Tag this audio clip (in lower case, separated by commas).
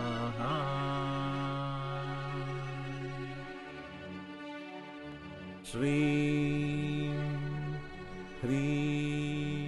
mantra, music